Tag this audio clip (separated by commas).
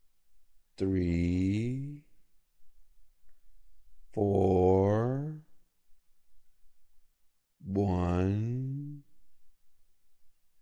Speech